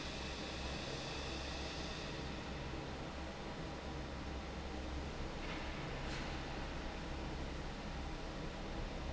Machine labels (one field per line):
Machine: fan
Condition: normal